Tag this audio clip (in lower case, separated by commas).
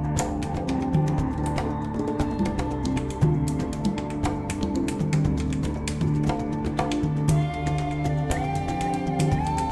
percussion, music